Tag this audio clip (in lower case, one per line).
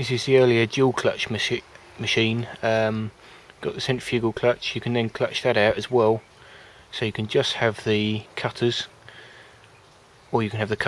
speech